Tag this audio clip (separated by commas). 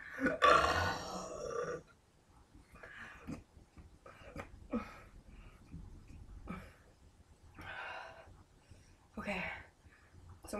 people burping